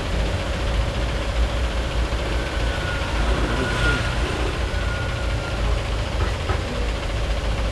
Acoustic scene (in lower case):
street